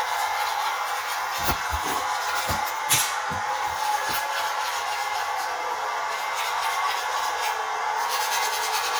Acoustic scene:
restroom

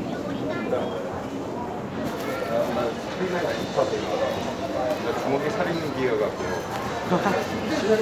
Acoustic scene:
crowded indoor space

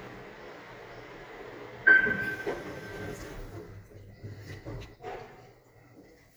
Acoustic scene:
elevator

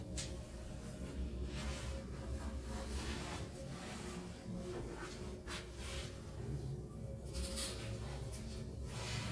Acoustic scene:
elevator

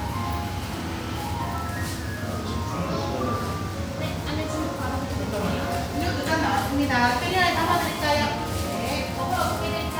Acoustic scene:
cafe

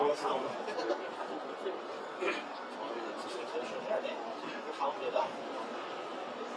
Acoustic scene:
crowded indoor space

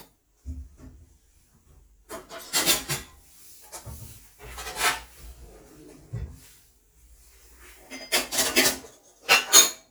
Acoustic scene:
kitchen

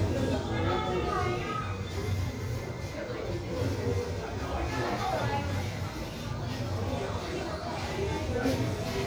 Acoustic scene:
crowded indoor space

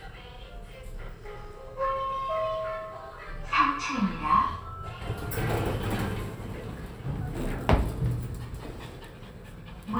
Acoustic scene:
elevator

